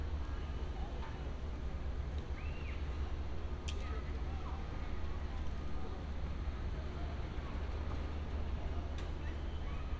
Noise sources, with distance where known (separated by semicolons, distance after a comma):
person or small group talking